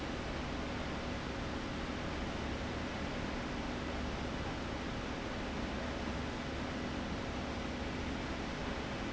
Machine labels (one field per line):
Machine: fan